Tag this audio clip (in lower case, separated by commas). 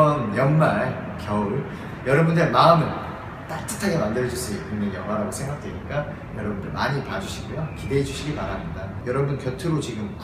speech